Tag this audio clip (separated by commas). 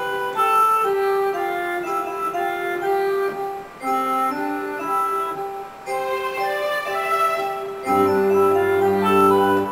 Music, Tender music